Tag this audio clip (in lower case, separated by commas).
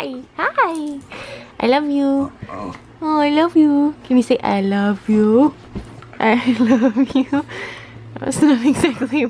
speech